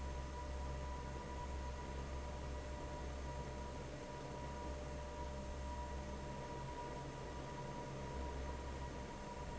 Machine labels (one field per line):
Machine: fan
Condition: normal